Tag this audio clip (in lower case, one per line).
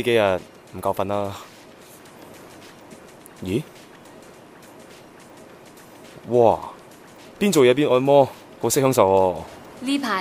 speech
music